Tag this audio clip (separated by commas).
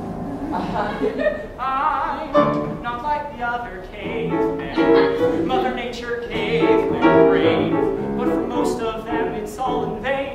Music, Male singing